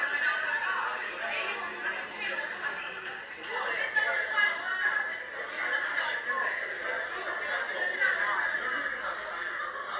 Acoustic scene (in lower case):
crowded indoor space